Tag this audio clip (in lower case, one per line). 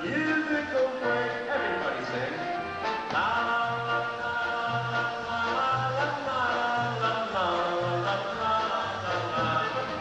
music